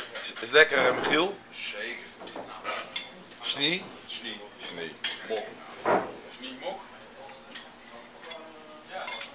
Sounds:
Speech

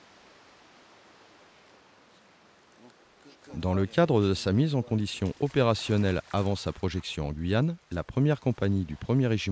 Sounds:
Speech

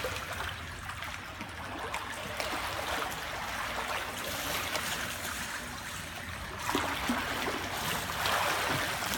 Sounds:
swimming

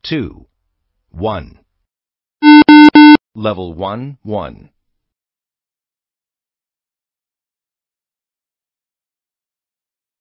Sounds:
Speech, Beep

